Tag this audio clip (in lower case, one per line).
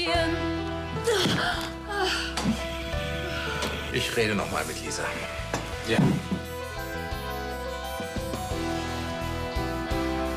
music
speech